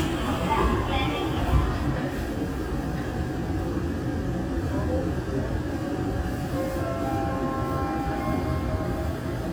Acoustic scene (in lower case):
subway train